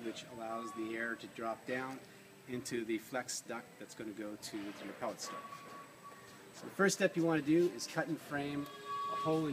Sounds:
Speech

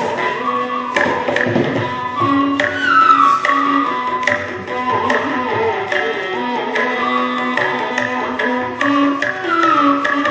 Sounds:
Music, Classical music

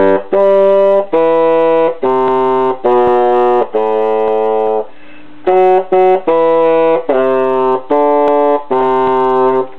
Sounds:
playing bassoon

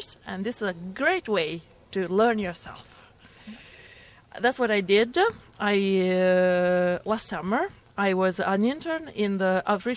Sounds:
Speech

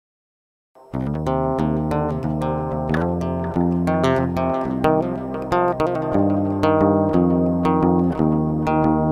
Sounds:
Bass guitar, Music

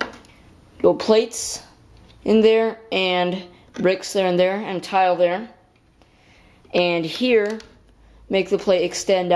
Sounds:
Speech, inside a small room

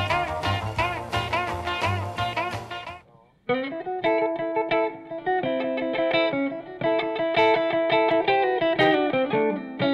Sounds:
Music, Rock and roll

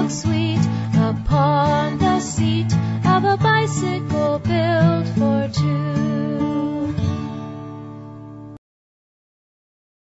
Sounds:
Music

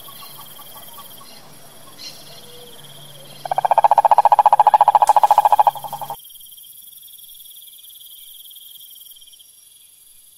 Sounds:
frog croaking

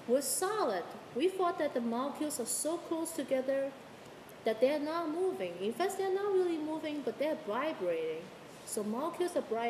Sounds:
Speech, Female speech

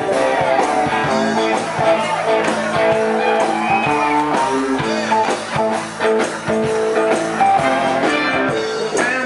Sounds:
Speech, Music

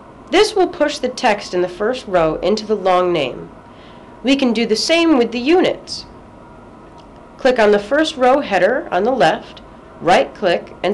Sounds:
Speech

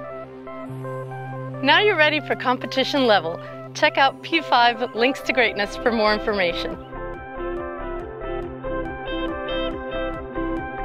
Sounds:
Music, Speech

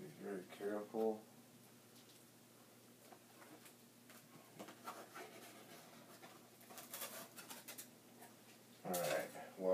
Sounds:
Speech

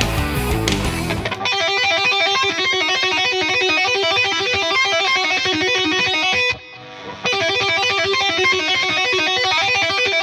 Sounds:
tapping guitar

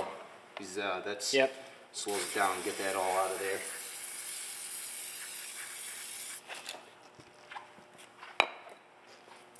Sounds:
Speech

